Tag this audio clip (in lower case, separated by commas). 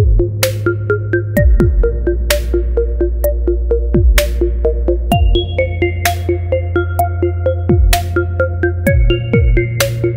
music, synthesizer